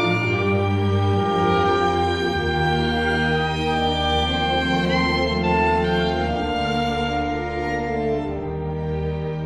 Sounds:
playing oboe

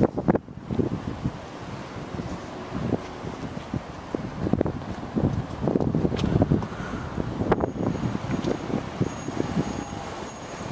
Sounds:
rain on surface

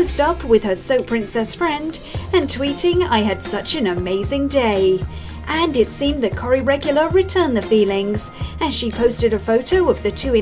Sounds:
music, speech

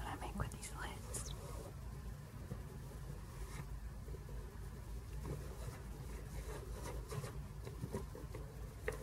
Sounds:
speech

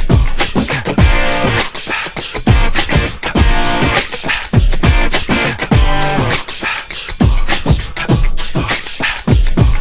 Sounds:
music, beatboxing

